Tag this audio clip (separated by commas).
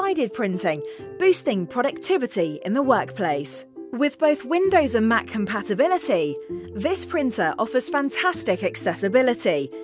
Music, Speech